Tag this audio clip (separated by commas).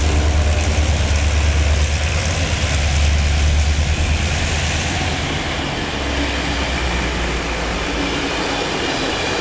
Rail transport, Train, Railroad car, Vehicle